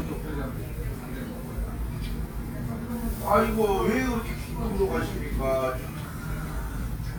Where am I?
in a restaurant